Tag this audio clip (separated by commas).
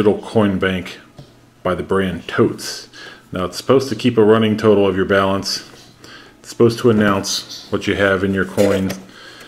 Speech